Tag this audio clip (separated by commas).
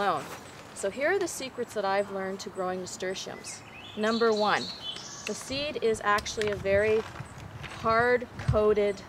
Speech, outside, urban or man-made